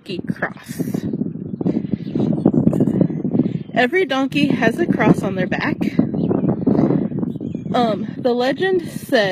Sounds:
ass braying

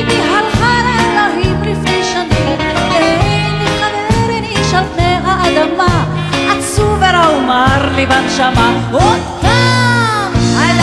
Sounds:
Musical instrument, Music

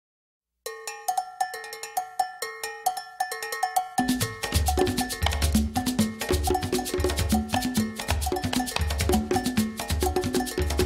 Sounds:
Drum, Musical instrument, Wood block, Drum kit, Music

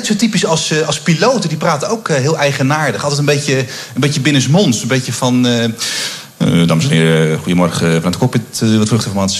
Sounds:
Speech

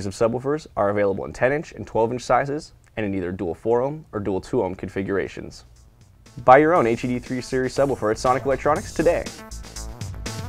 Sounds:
Speech, Music

